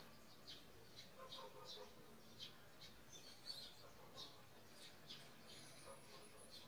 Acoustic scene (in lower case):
park